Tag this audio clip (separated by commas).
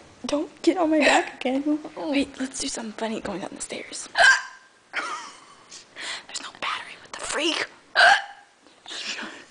Speech, Hiccup, people hiccup